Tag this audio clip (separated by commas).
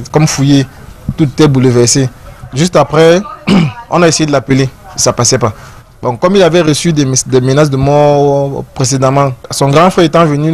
Speech